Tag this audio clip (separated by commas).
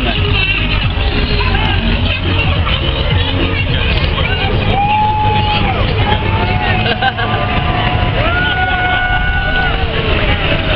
Music, Vehicle, Speech, Car passing by